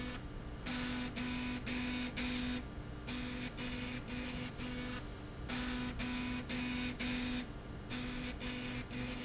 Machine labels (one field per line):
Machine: slide rail